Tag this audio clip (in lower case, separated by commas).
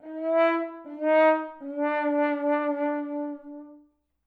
music, brass instrument, musical instrument